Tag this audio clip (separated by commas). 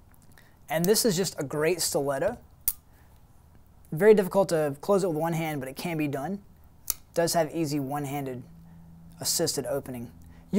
Speech